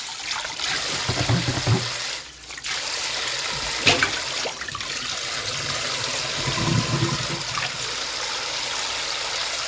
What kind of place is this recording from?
kitchen